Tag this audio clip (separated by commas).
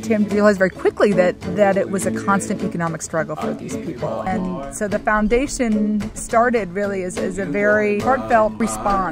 Music, Speech